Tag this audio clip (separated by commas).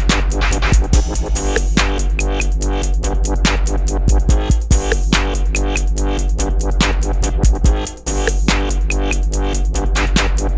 Music, Electronic music